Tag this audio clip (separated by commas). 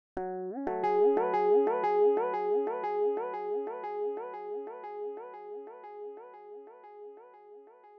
Music, Guitar, Plucked string instrument, Musical instrument